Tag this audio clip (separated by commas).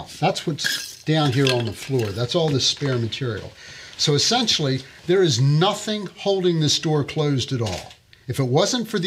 Speech